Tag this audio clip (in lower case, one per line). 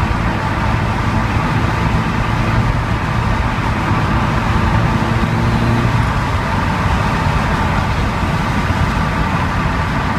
car
vehicle